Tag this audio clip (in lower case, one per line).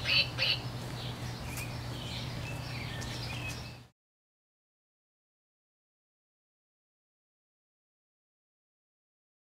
quack
animal